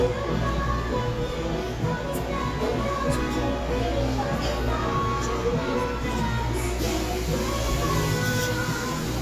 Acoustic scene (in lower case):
cafe